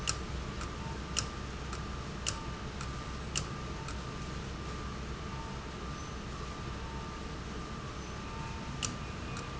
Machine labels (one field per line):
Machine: valve